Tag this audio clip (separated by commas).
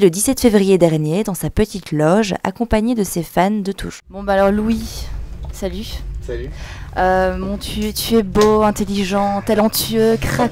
Speech